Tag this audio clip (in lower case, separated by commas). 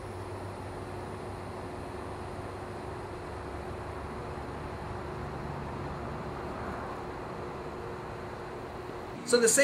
speech, outside, rural or natural, inside a small room